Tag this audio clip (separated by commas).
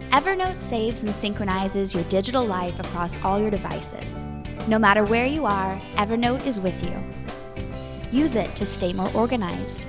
Music, Speech